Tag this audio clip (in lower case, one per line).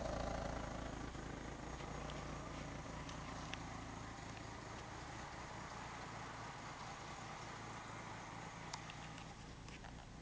walk